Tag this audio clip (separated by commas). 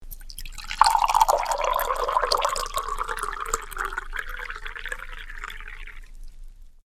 Fill (with liquid), Liquid